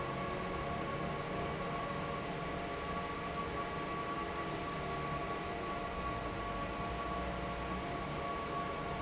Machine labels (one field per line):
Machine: fan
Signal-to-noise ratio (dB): -6 dB